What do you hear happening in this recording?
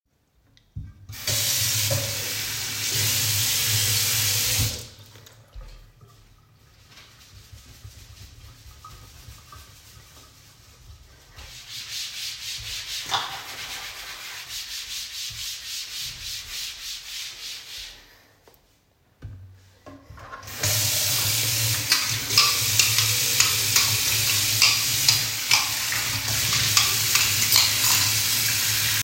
I opened water tap to wet the sponge, after i closed it and washed the kitchendeck surface, then i opened water tap and started washing dishes